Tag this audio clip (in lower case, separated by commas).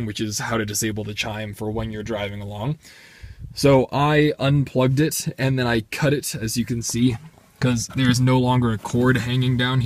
reversing beeps